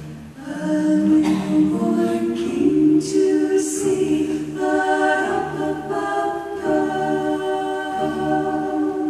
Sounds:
Singing, Music, Choir, A capella

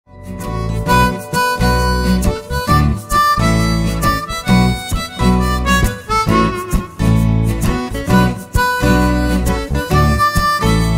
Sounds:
playing harmonica

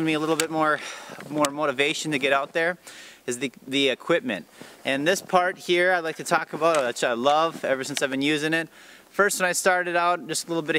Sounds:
Speech

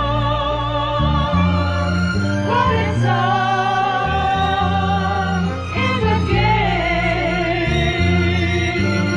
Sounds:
Music

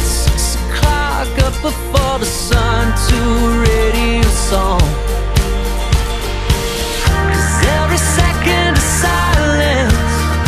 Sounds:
Music

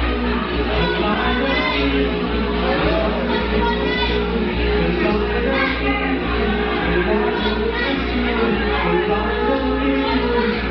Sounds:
Music, Speech

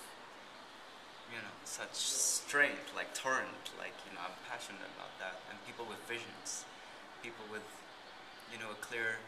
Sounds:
Speech, inside a small room

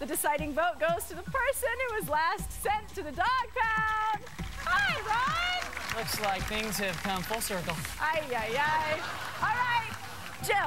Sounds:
Speech, Music

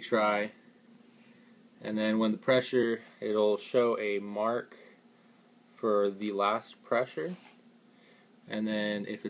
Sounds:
Speech

